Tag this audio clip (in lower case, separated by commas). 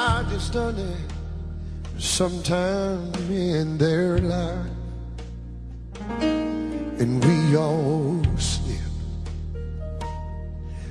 music